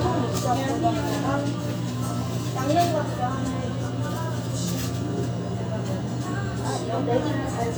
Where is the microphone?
in a restaurant